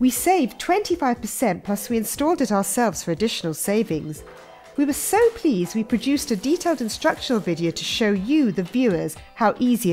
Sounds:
speech

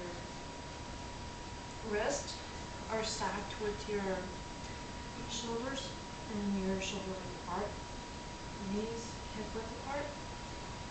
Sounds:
speech

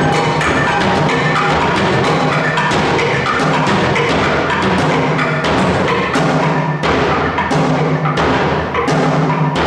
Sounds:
wood block
music

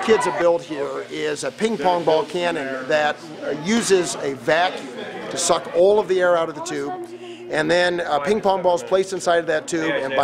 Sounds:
speech

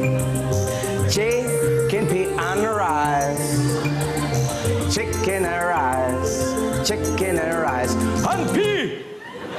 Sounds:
music

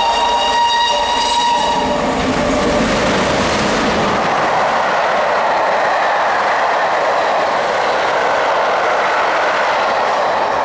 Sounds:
train whistling

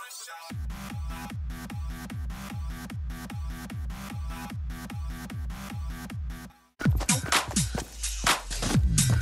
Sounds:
people shuffling

